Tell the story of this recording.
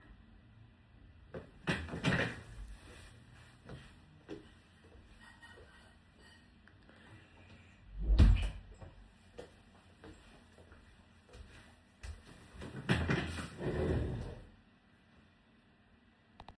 i stood up from my chair .walked to the door as I walking someone was using their cutleries in the background . And then I came back to my chair